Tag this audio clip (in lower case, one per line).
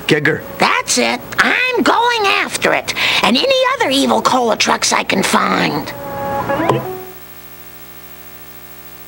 speech